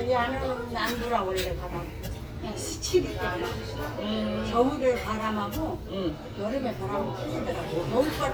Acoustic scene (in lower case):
restaurant